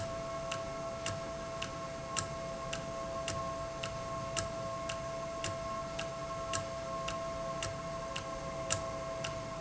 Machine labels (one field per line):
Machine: valve